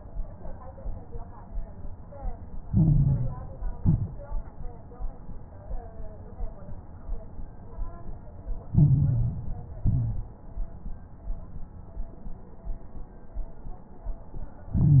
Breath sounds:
Inhalation: 2.68-3.76 s, 8.74-9.82 s, 14.74-15.00 s
Exhalation: 3.78-4.22 s, 9.82-10.32 s
Crackles: 2.68-3.76 s, 3.78-4.22 s, 8.74-9.82 s, 9.82-10.32 s, 14.74-15.00 s

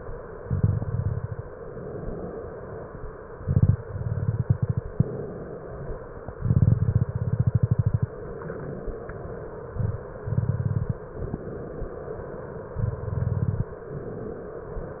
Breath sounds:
Inhalation: 1.53-2.97 s, 5.09-6.30 s, 8.18-9.68 s, 11.20-12.71 s, 13.81-15.00 s
Exhalation: 0.40-1.49 s, 3.37-5.04 s, 6.36-8.03 s, 10.19-11.10 s, 12.76-13.77 s
Crackles: 0.40-1.49 s, 3.37-5.04 s, 6.36-8.03 s, 10.19-11.10 s, 12.76-13.77 s

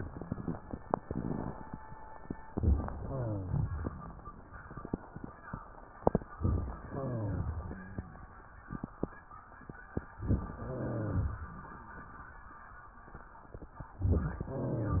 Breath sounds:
Inhalation: 2.50-3.00 s, 6.39-6.89 s, 10.11-10.61 s, 14.00-14.50 s
Exhalation: 3.00-4.10 s, 6.91-8.27 s, 10.57-11.63 s, 14.50-15.00 s
Rhonchi: 3.00-4.10 s, 6.91-8.27 s, 10.58-11.63 s, 14.50-15.00 s
Crackles: 2.50-3.00 s, 6.39-6.89 s, 10.08-10.58 s, 14.00-14.50 s

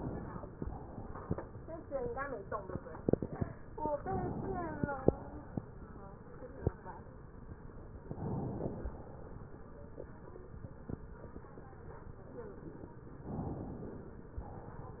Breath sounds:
Inhalation: 0.00-0.54 s, 3.92-4.83 s, 8.00-8.96 s, 13.31-14.27 s
Exhalation: 0.54-1.45 s, 4.83-5.79 s, 14.27-15.00 s

